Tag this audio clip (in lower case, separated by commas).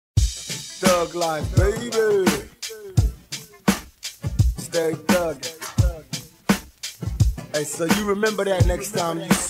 rapping